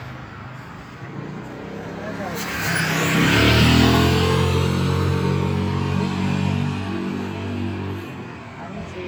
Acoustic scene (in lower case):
street